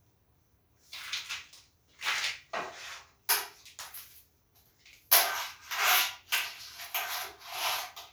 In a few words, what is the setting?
restroom